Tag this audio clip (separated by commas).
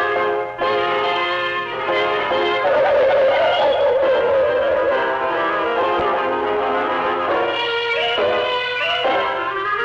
Music